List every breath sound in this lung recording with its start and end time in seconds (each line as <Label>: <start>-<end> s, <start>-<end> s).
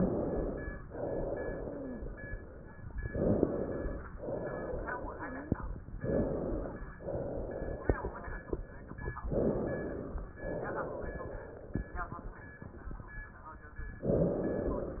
Inhalation: 0.00-0.80 s, 3.04-4.00 s, 5.96-6.89 s, 9.31-10.30 s, 14.06-15.00 s
Exhalation: 0.85-2.78 s, 4.17-5.84 s, 6.96-9.14 s, 10.42-12.59 s
Wheeze: 1.52-2.00 s, 5.07-5.55 s